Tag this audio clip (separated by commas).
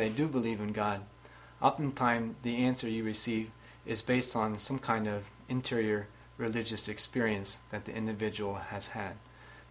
Speech